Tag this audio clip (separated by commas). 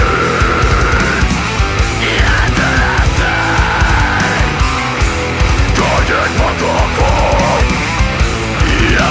Music